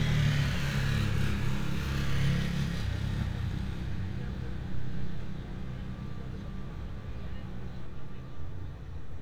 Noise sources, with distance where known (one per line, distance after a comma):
small or medium rotating saw